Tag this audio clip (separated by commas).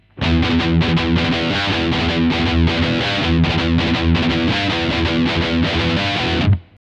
Plucked string instrument, Guitar, Musical instrument, Electric guitar, Music